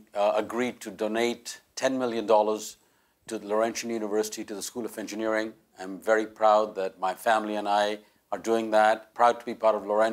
A man is speaking in a monotone voice